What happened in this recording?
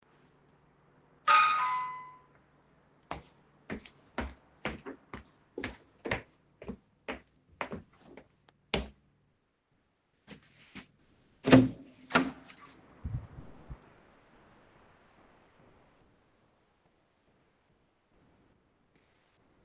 I heard the bell ringing. So I walked to the door and opened it